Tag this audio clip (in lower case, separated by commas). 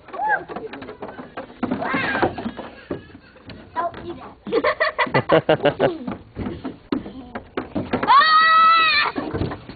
screaming, speech, people screaming, kid speaking